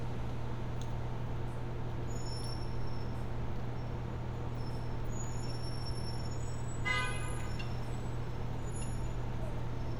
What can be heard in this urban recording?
engine of unclear size, car horn